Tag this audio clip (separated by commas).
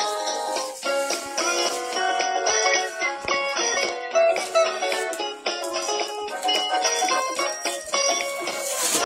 Music